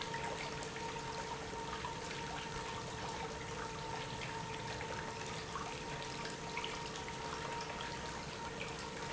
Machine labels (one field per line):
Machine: pump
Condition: normal